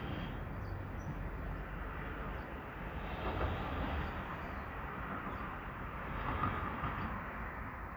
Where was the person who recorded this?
in a residential area